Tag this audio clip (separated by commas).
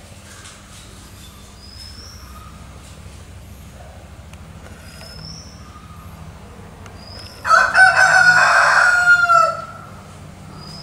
chicken crowing